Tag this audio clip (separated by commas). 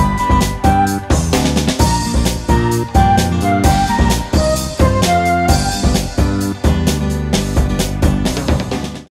Music